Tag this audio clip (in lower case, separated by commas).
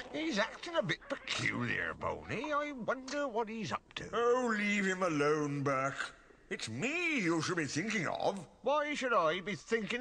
speech